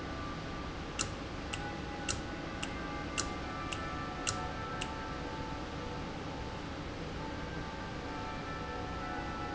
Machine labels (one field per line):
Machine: valve